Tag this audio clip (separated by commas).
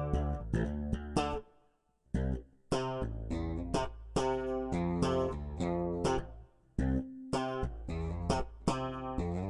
Jazz, Music